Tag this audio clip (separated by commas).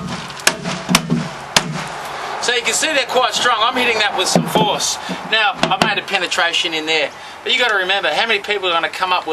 Speech